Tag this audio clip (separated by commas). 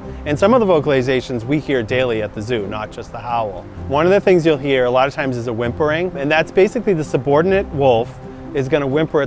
Music, Speech